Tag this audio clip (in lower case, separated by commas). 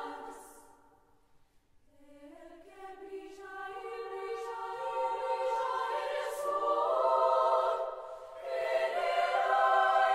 singing choir